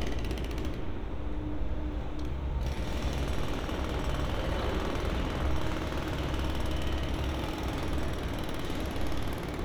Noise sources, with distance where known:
jackhammer, near

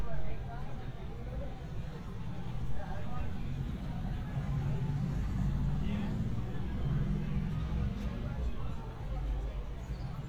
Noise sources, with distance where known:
medium-sounding engine, near
person or small group talking, far

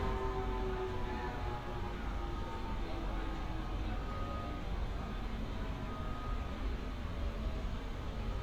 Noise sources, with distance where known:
reverse beeper, far

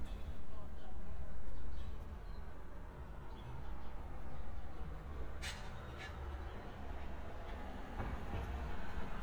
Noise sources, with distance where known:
medium-sounding engine
person or small group talking

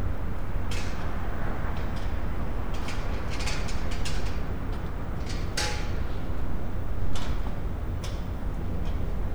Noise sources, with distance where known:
non-machinery impact

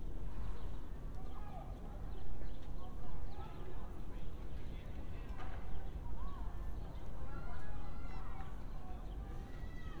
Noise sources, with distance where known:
person or small group shouting, far

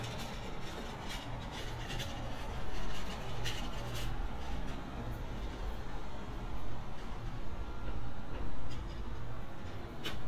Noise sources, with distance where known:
background noise

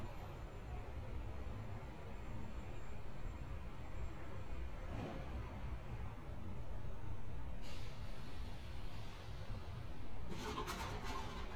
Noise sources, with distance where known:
background noise

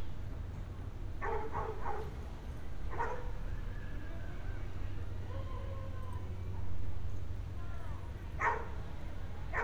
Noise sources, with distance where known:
dog barking or whining

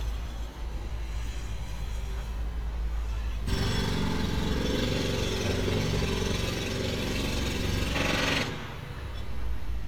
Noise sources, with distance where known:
jackhammer, near

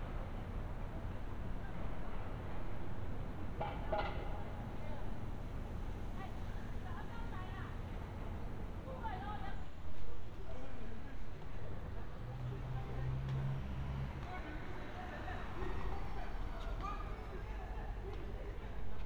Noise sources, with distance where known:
person or small group shouting, far

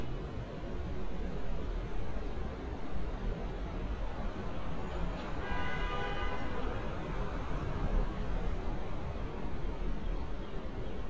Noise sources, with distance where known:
car horn

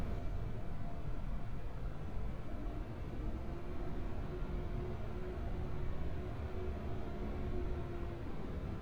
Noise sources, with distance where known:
background noise

